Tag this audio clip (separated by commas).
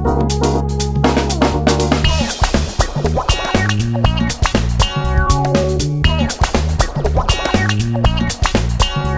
Music